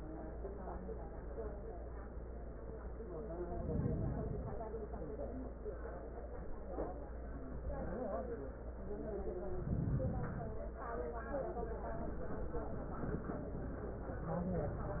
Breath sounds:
Inhalation: 3.38-4.66 s, 9.45-10.73 s

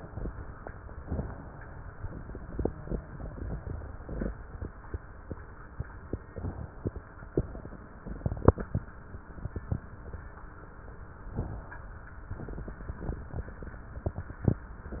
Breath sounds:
Inhalation: 0.99-1.95 s, 6.30-7.13 s, 11.26-12.11 s

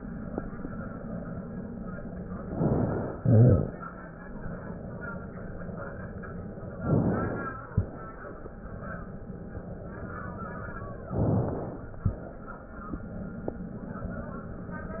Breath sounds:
Inhalation: 2.46-3.19 s, 6.73-7.35 s, 11.04-11.96 s
Exhalation: 3.19-3.81 s, 7.33-7.94 s, 11.96-12.65 s
Crackles: 3.19-3.81 s, 7.33-7.96 s, 11.94-12.62 s

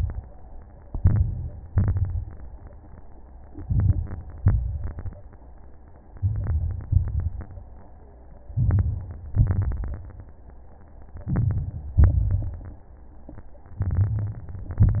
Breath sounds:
Inhalation: 0.88-1.68 s, 3.64-4.39 s, 6.17-6.88 s, 8.54-9.21 s, 11.29-11.95 s, 13.79-14.46 s
Exhalation: 1.69-2.49 s, 4.38-5.13 s, 6.89-7.49 s, 9.36-10.02 s, 11.99-12.66 s, 14.69-15.00 s
Crackles: 0.88-1.68 s, 1.69-2.49 s, 3.60-4.34 s, 4.38-5.13 s, 6.17-6.88 s, 6.89-7.49 s, 8.54-9.21 s, 9.36-10.02 s, 11.29-11.95 s, 11.99-12.66 s, 13.79-14.46 s, 14.69-15.00 s

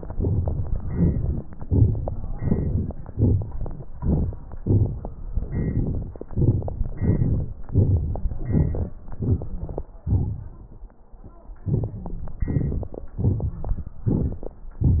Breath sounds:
Inhalation: 0.18-0.76 s, 1.59-2.40 s, 3.11-3.90 s, 4.50-5.45 s, 6.25-6.92 s, 7.69-8.35 s, 9.04-10.04 s, 11.59-12.37 s, 13.14-13.96 s
Exhalation: 0.74-1.58 s, 2.40-3.14 s, 3.90-4.54 s, 5.42-6.24 s, 6.92-7.67 s, 8.34-9.03 s, 10.02-10.94 s, 12.41-13.20 s, 13.98-14.75 s
Crackles: 0.17-0.72 s, 0.74-1.58 s, 1.59-2.40 s, 2.42-3.14 s, 3.16-3.91 s, 3.92-4.54 s, 4.55-5.42 s, 5.42-6.24 s, 6.25-6.92 s, 6.94-7.67 s, 7.70-8.32 s, 8.34-9.03 s, 9.04-10.04 s, 11.59-12.37 s, 12.38-13.13 s, 13.14-13.96 s, 13.98-14.75 s

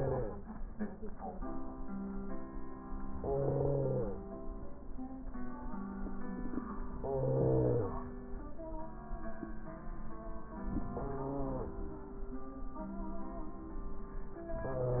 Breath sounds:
Inhalation: 3.16-4.23 s, 7.01-8.08 s, 10.61-11.68 s
Stridor: 3.13-4.21 s, 7.00-8.07 s, 10.61-11.68 s

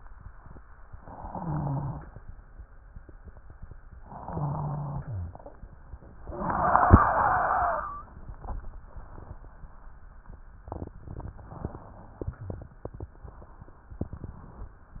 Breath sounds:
Inhalation: 1.08-2.17 s, 4.16-5.41 s
Wheeze: 1.08-2.17 s, 4.16-5.41 s

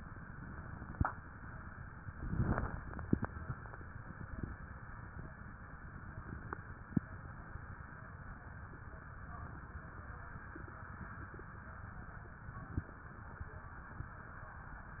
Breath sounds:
Inhalation: 0.00-0.97 s, 2.14-3.25 s, 4.34-5.31 s
Exhalation: 1.03-2.14 s, 3.23-4.30 s, 5.29-6.50 s

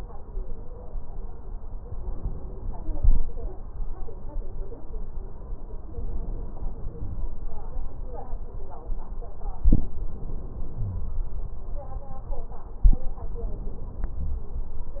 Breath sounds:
Wheeze: 10.80-11.42 s

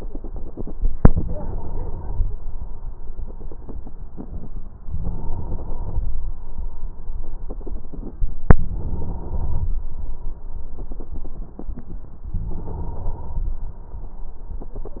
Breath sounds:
Inhalation: 1.07-2.35 s, 4.89-6.06 s, 8.68-9.85 s, 12.39-13.56 s
Crackles: 12.36-13.57 s

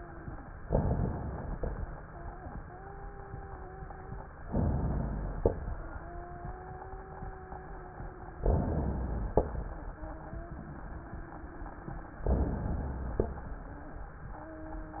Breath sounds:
Inhalation: 0.61-1.54 s, 4.46-5.38 s, 8.41-9.44 s, 12.22-13.25 s
Exhalation: 1.54-2.03 s, 5.38-5.90 s, 9.40-9.93 s, 13.25-13.83 s
Wheeze: 2.03-2.52 s, 2.64-4.31 s, 5.67-8.39 s, 9.66-12.14 s, 14.35-15.00 s
Crackles: 0.61-1.54 s, 1.58-2.07 s, 4.46-5.38 s, 8.41-9.44 s, 12.22-13.25 s

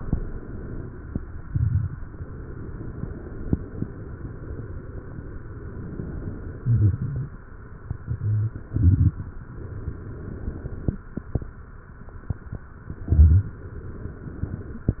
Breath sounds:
Inhalation: 1.97-3.54 s, 9.45-10.94 s, 13.54-14.92 s
Exhalation: 0.00-1.97 s, 3.58-9.23 s, 11.02-13.54 s

